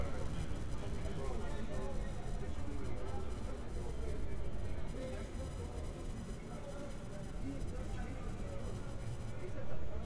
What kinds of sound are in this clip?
person or small group talking